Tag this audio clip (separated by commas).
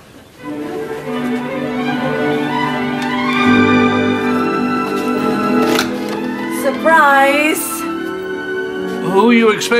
Orchestra